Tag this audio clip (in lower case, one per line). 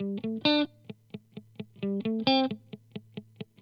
electric guitar
guitar
music
plucked string instrument
musical instrument